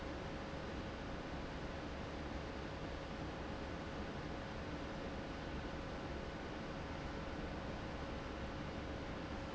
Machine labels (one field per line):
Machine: fan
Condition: abnormal